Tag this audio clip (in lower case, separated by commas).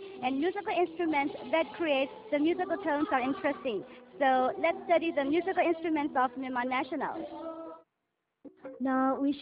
speech, music